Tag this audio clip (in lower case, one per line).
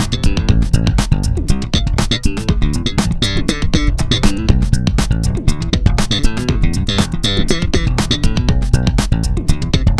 bass guitar
playing bass guitar
plucked string instrument
music
musical instrument
guitar